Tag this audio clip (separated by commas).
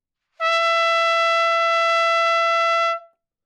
Brass instrument, Music, Trumpet, Musical instrument